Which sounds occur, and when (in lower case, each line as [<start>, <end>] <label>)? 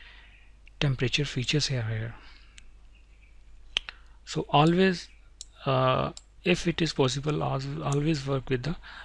[0.00, 0.59] breathing
[0.00, 9.04] background noise
[0.78, 2.10] male speech
[2.11, 2.78] breathing
[2.54, 2.61] clicking
[2.79, 3.57] bird vocalization
[3.74, 3.92] generic impact sounds
[4.27, 4.94] male speech
[4.62, 4.74] clicking
[5.08, 5.33] bird vocalization
[5.36, 5.51] clicking
[5.64, 6.12] male speech
[6.11, 6.25] clicking
[6.40, 8.74] male speech
[7.84, 8.00] clicking
[8.80, 9.04] breathing